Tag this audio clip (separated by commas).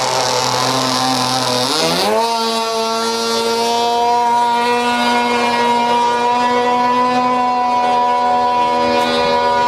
Motorboat, Vehicle